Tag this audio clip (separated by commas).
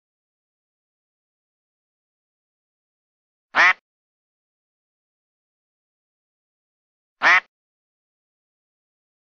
duck quacking